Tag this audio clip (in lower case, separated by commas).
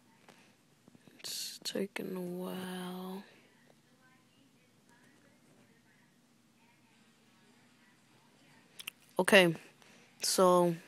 speech